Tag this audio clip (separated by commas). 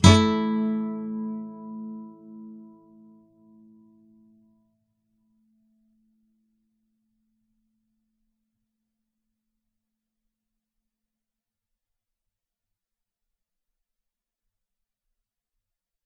Musical instrument, Guitar, Plucked string instrument, Music